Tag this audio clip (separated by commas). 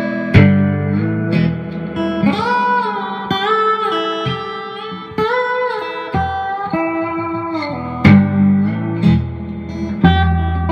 slide guitar